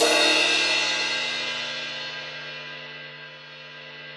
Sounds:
percussion
musical instrument
crash cymbal
music
cymbal

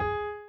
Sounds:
keyboard (musical)
piano
musical instrument
music

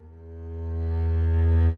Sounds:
bowed string instrument
music
musical instrument

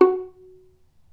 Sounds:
musical instrument
music
bowed string instrument

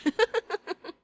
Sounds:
human voice
laughter

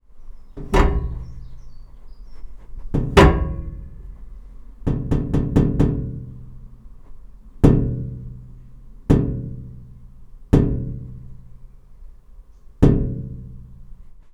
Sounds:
tap

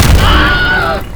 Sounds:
explosion

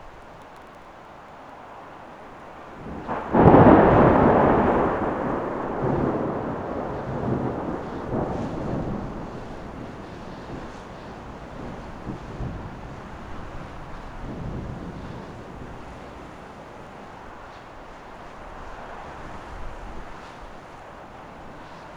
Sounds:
thunderstorm
water
thunder
rain

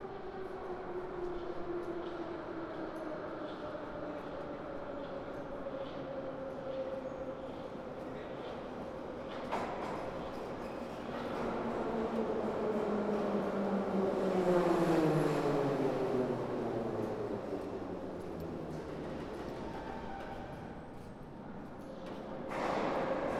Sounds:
rail transport
vehicle
subway

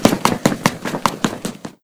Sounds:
run

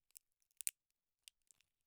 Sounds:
crack

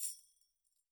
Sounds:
musical instrument
music
tambourine
percussion

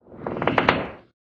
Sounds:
squeak

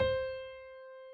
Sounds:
keyboard (musical)
piano
music
musical instrument

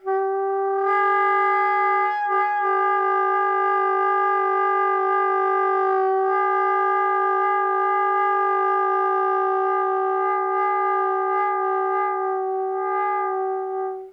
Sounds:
musical instrument
wind instrument
music

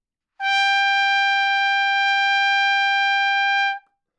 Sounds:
brass instrument
musical instrument
trumpet
music

